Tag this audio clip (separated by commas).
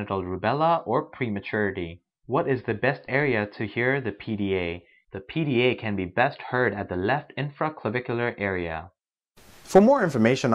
Speech